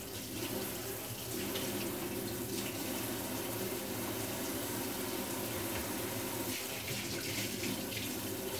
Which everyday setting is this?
kitchen